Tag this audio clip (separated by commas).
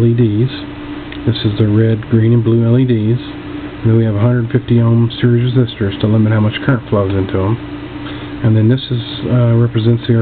Speech